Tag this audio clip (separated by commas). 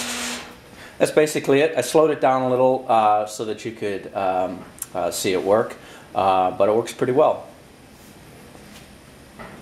inside a small room, Speech